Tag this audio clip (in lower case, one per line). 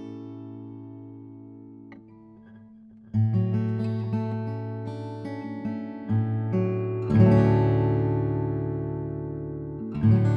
guitar
acoustic guitar
music
musical instrument